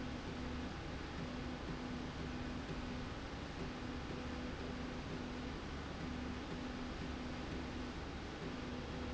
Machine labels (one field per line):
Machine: slide rail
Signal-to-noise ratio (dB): 0 dB